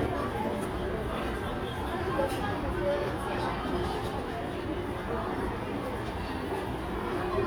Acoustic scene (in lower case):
crowded indoor space